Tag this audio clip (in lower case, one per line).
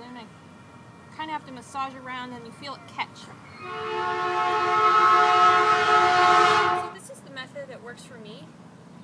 train whistle
outside, urban or man-made
speech